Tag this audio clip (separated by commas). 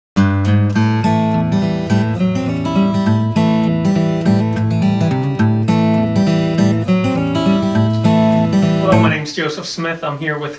Strum